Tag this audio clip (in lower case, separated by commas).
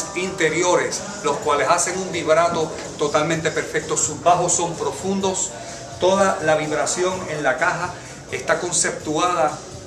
background music, music, speech